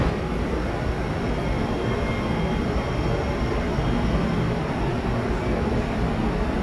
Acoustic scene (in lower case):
subway station